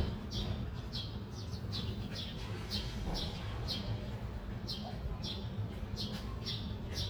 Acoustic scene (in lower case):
residential area